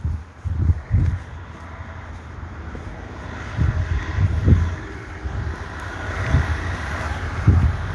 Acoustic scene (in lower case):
residential area